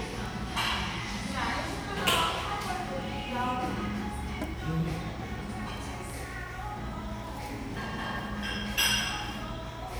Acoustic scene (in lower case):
cafe